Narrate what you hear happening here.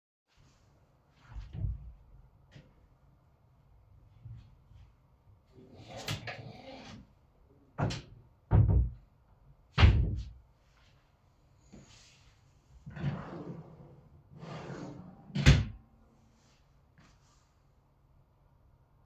I opened and closed my wardrobe. Then I went to a table drawer and also opened and closed it.